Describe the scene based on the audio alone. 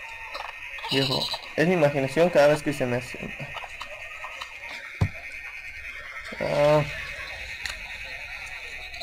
Sheep are bleating and a man is talking